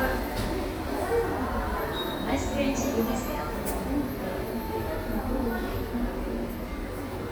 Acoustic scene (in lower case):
subway station